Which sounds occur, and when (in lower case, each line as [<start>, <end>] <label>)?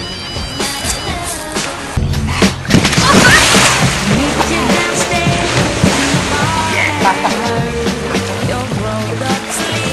[0.00, 1.09] ringtone
[0.00, 9.92] music
[0.00, 9.92] water
[0.60, 1.93] female singing
[2.57, 7.50] splatter
[2.89, 3.40] laughter
[4.03, 8.06] female singing
[6.66, 7.54] laughter
[8.39, 9.92] female singing
[9.17, 9.92] splatter